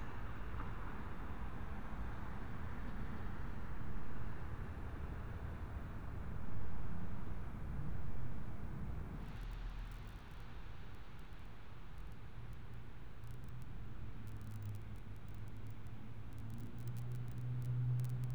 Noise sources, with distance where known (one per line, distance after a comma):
background noise